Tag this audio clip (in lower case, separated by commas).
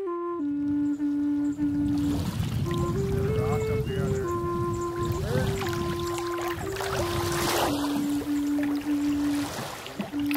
boat, canoe